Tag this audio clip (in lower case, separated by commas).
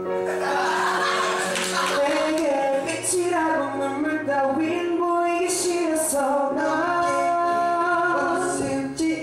music